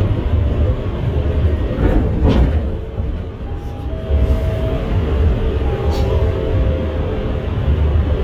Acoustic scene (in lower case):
bus